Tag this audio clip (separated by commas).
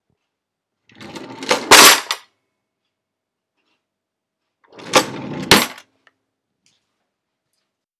Domestic sounds, Drawer open or close